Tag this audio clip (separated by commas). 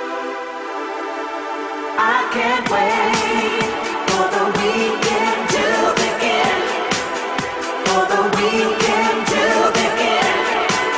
Pop music